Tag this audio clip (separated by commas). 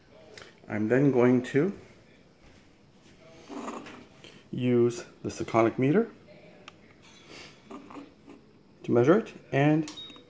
Speech